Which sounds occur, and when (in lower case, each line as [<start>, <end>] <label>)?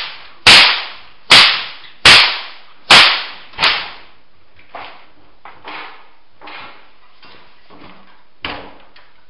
[0.00, 0.27] whip
[0.00, 9.25] mechanisms
[0.41, 1.02] whip
[1.25, 1.84] whip
[2.00, 2.61] whip
[2.85, 3.39] whip
[3.53, 4.13] whip
[4.52, 5.09] whip
[5.42, 6.16] generic impact sounds
[6.35, 6.96] generic impact sounds
[7.16, 8.21] generic impact sounds
[8.43, 9.22] generic impact sounds